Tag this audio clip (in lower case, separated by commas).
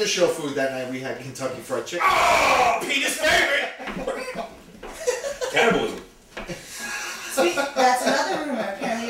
speech